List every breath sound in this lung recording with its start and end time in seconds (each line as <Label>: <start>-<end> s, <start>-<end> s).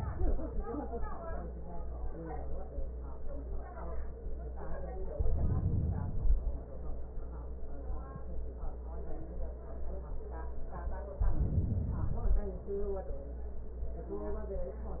Inhalation: 5.05-6.55 s, 11.18-12.62 s